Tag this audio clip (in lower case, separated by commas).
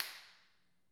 hands, clapping